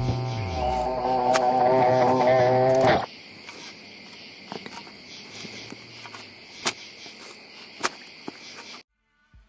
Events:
0.0s-8.8s: insect
6.0s-6.4s: bee or wasp
8.2s-8.3s: generic impact sounds
8.8s-9.4s: music

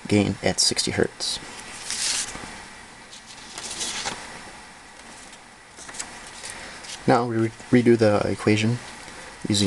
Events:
0.0s-9.6s: background noise
0.0s-1.4s: man speaking
7.0s-8.8s: man speaking

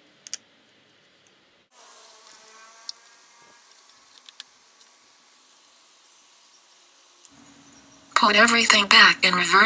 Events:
0.0s-9.6s: mechanisms
0.2s-0.4s: generic impact sounds
0.6s-0.7s: tick
0.8s-1.0s: tick
1.2s-1.3s: tick
1.9s-2.5s: generic impact sounds
2.8s-2.9s: tick
3.7s-4.4s: generic impact sounds
4.8s-4.9s: tick
5.9s-8.1s: bird song
7.2s-7.3s: tick
8.1s-9.6s: female speech

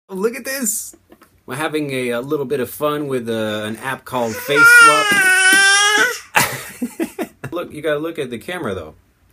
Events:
0.1s-0.9s: male speech
0.1s-9.3s: background noise
0.9s-1.0s: tick
1.1s-1.3s: tick
1.4s-5.0s: male speech
4.2s-4.5s: breathing
4.3s-6.2s: babbling
6.1s-6.3s: breathing
6.3s-6.5s: human voice
6.4s-7.5s: laughter
6.5s-6.8s: breathing
7.5s-8.9s: male speech
9.3s-9.3s: tick

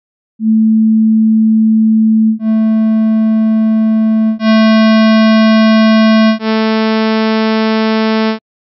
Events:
0.4s-8.4s: sine wave

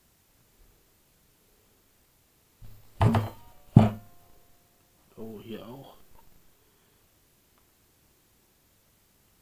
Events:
0.0s-9.4s: background noise
2.6s-2.8s: generic impact sounds
3.0s-3.3s: generic impact sounds
3.3s-4.9s: music
3.7s-4.0s: generic impact sounds
5.0s-6.0s: man speaking
6.1s-6.2s: tick
7.5s-7.6s: tick

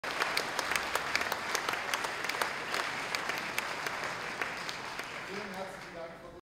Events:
0.0s-6.1s: applause
0.0s-6.4s: background noise
0.0s-0.1s: clapping
0.2s-0.2s: clapping
0.3s-0.4s: clapping
0.5s-0.6s: clapping
0.7s-0.8s: clapping
0.9s-1.0s: clapping
1.1s-1.2s: clapping
1.3s-1.3s: clapping
1.5s-1.5s: clapping
1.7s-1.7s: clapping
1.9s-1.9s: clapping
2.0s-2.1s: clapping
2.2s-2.3s: clapping
2.4s-2.4s: clapping
2.7s-2.8s: clapping
3.1s-3.2s: clapping
3.3s-3.4s: clapping
3.5s-3.6s: clapping
3.8s-3.8s: clapping
4.4s-4.4s: clapping
4.7s-4.7s: clapping
4.9s-5.0s: clapping
5.3s-6.4s: man speaking

